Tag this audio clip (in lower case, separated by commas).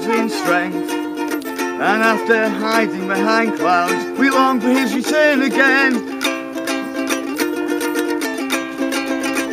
music, male singing